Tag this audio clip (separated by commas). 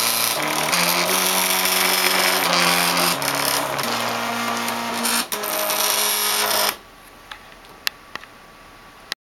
Printer, Music